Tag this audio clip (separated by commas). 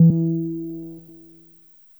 Musical instrument, Keyboard (musical), Music, Piano